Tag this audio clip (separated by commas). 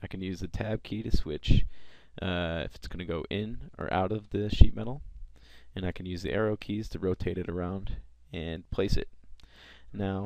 Speech